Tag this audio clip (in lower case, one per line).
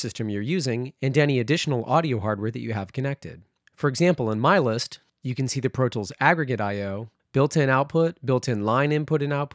speech